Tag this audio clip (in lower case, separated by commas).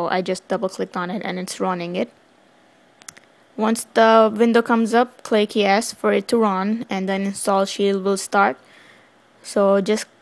speech